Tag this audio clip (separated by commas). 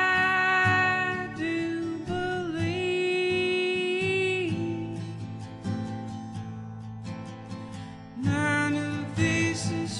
Music